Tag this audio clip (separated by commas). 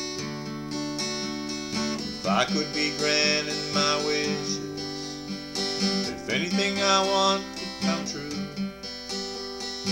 Music, Male singing